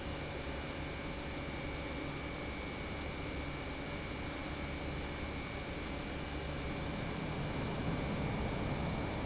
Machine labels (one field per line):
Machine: pump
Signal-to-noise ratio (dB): -6 dB